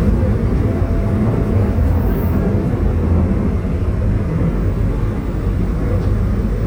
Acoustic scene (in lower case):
subway train